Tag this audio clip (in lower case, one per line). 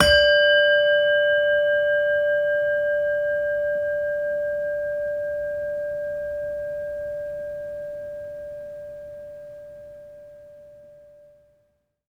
bell